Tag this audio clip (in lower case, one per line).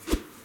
swish